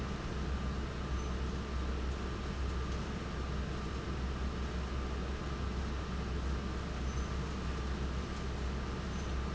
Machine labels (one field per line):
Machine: fan